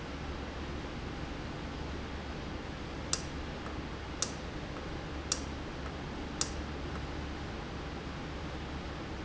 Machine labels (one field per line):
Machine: valve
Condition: normal